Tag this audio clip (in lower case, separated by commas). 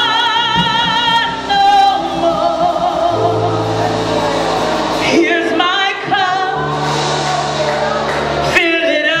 music